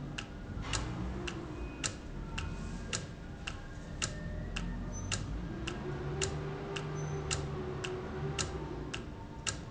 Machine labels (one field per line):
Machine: valve